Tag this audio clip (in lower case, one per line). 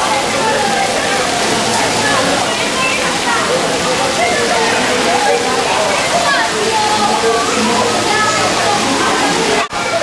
sloshing water